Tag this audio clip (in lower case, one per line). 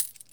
domestic sounds
coin (dropping)